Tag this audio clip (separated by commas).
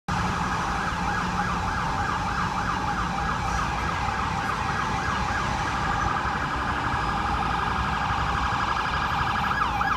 Emergency vehicle, Siren, Ambulance (siren), ambulance siren